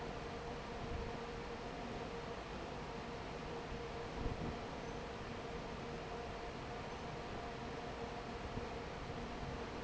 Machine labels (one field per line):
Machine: fan